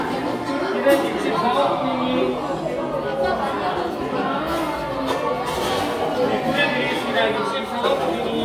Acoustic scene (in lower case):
cafe